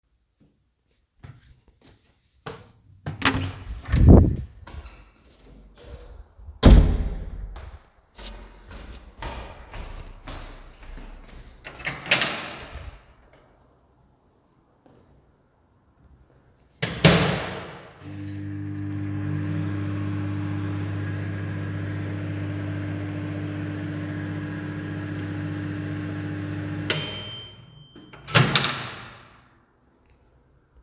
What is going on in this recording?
I opend the door, came inside, closed the door and walked to the microwave. I opend the microwave, closed it, turned on, waited untill it finished and opened it.